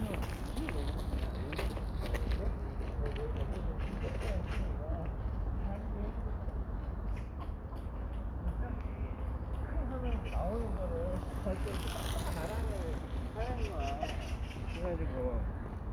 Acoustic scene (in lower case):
park